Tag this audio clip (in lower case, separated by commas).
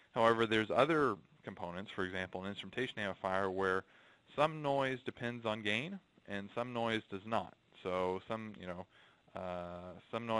speech